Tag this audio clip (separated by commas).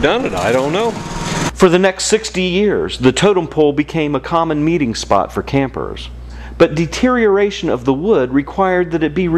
Speech